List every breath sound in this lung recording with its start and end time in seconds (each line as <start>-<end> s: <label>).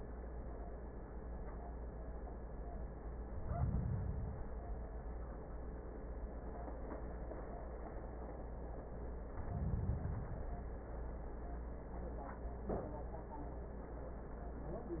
3.25-4.55 s: inhalation
9.45-10.69 s: inhalation